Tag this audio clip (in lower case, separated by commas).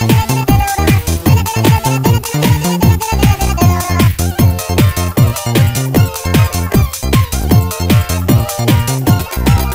soundtrack music, music